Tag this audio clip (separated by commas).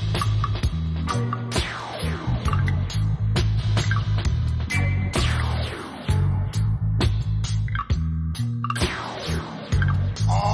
Music